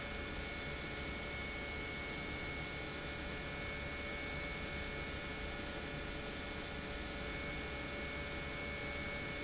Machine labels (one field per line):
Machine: pump